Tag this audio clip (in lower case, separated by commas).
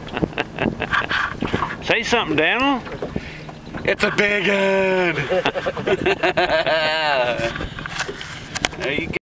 speech